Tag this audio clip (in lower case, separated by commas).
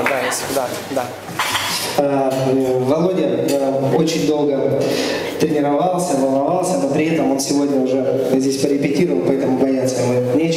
beat boxing